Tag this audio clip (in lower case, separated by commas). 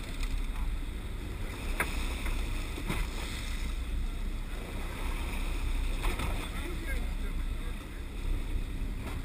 speech, water vehicle